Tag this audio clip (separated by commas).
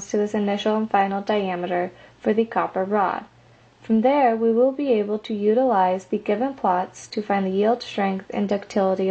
Speech